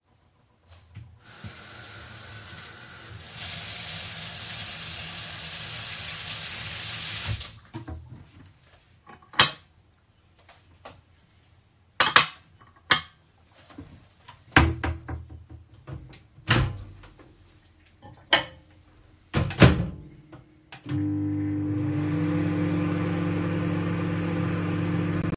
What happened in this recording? I opened the drawer in the kitchen, took a plate and closed it again. I opened the microwave, put the plate in it, closed the microwave, finally, turned the microwave on.